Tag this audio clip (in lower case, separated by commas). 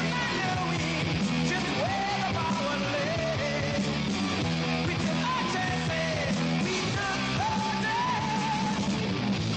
music